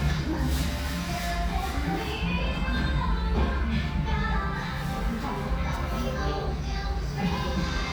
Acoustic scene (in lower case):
restaurant